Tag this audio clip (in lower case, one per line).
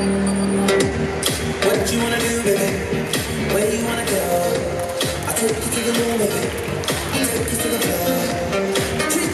rope skipping